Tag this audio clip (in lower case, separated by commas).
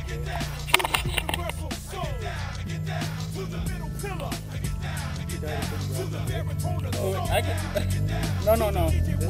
vehicle, speech, music